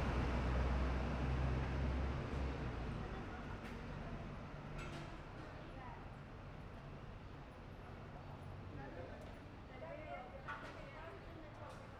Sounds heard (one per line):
bus engine accelerating
people talking
bus